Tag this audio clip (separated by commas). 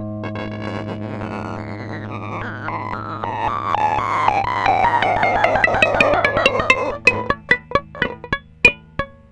Cacophony, Musical instrument, Music